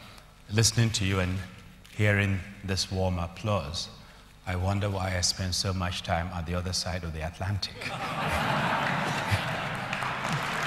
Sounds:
man speaking, monologue, Speech

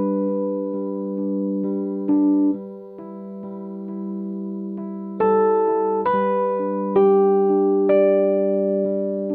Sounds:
Music

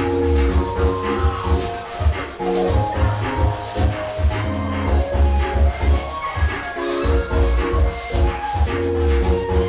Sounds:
Music, Dance music

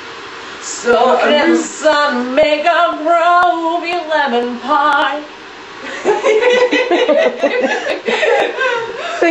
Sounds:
Female singing, Speech

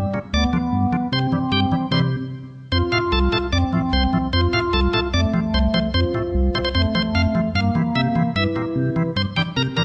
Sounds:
Music

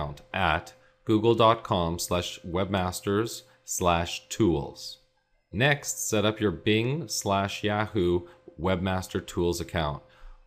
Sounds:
Speech

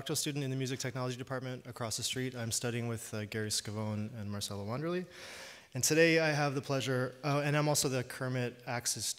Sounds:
Speech

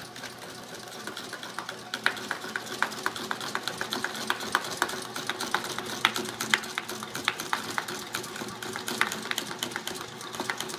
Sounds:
inside a small room

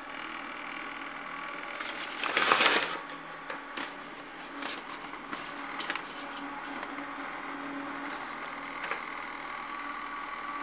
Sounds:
bathroom ventilation fan running

